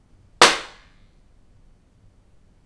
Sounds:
Hands, Clapping

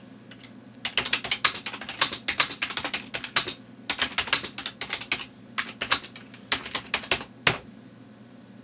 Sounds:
Domestic sounds, Typing, Computer keyboard

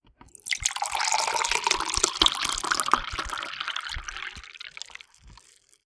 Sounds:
Liquid, Fill (with liquid)

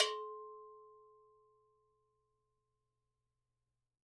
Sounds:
Bell

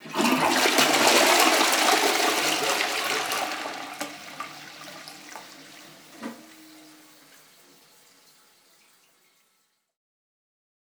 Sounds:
Domestic sounds, Toilet flush

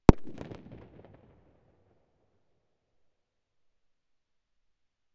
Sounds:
Fireworks, Explosion

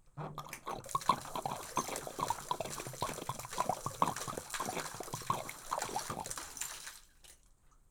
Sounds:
Liquid

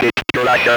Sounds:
Human voice, Speech

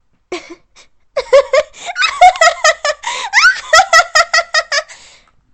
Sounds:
Human voice, Laughter

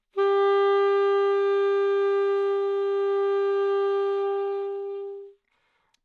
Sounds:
Music, woodwind instrument, Musical instrument

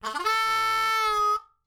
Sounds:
Musical instrument, Harmonica, Music

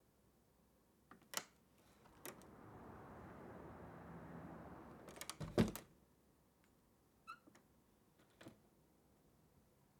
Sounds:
home sounds, Sliding door, Door

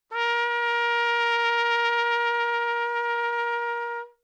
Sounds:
Brass instrument, Trumpet, Musical instrument, Music

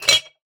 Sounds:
Glass, clink

